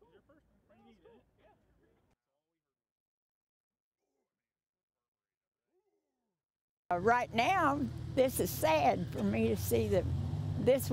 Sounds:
Speech

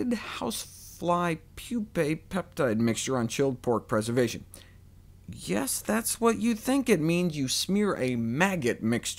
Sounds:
Speech

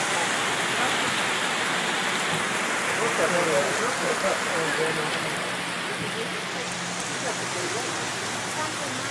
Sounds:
Rain

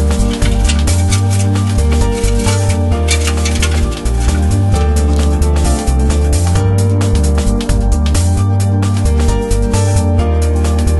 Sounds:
Music

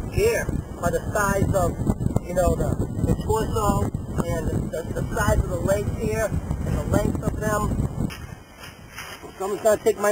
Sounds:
Speech

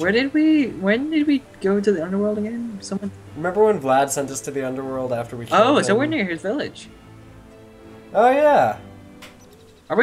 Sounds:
Speech, Music

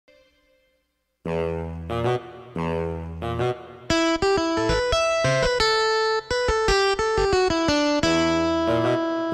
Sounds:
Piano, Keyboard (musical), Electric piano, Musical instrument, Music

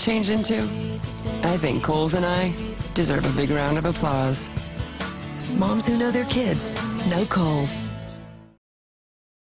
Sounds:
Music, Speech

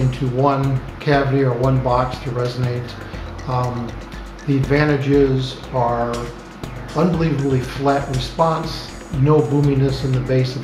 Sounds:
Speech, Music

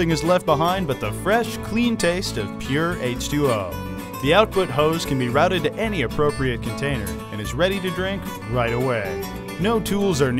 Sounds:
Speech, Music

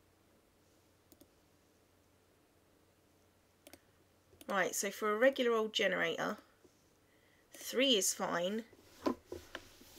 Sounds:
Clicking, Speech, inside a small room

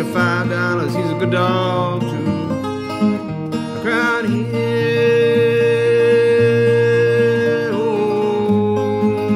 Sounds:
Music

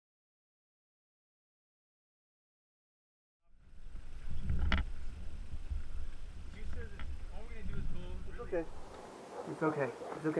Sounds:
Speech

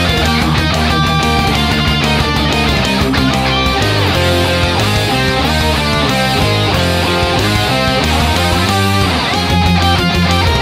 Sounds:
Music, Musical instrument, Strum, Plucked string instrument, Electric guitar, Guitar

